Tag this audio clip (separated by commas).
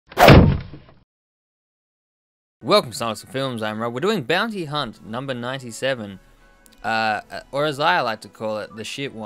Speech